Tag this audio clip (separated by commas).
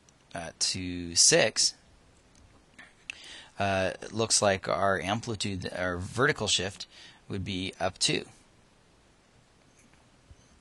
Speech